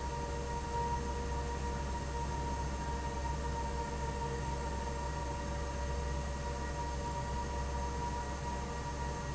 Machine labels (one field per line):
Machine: fan